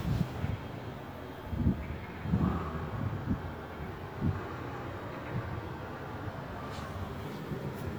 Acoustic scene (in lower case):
residential area